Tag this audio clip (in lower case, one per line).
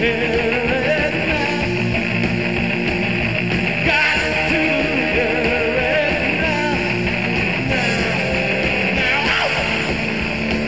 rock and roll
music